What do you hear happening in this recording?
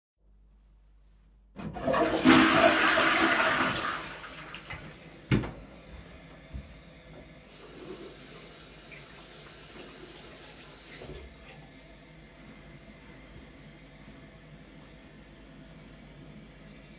I flushed the toilet. Went to the sink and washed my hands.